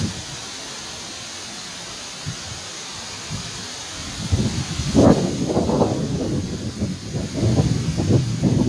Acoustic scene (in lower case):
park